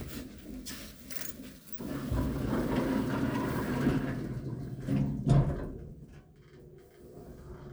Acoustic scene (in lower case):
elevator